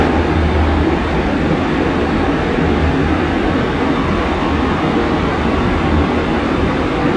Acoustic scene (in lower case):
subway train